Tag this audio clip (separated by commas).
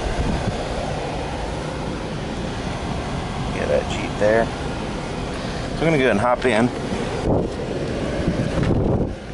Vehicle, Speech, Car, outside, urban or man-made